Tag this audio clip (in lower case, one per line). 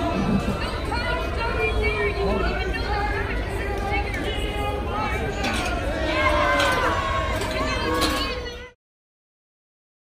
people booing